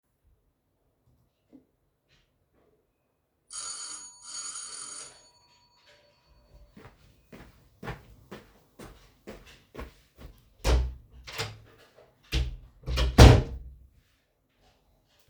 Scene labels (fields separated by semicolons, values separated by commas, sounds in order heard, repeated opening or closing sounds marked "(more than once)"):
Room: hallway; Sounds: bell ringing, footsteps, door